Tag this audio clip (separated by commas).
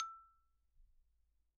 Musical instrument, xylophone, Mallet percussion, Music, Percussion